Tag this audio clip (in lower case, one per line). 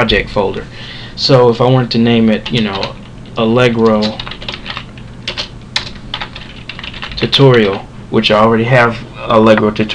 typing
speech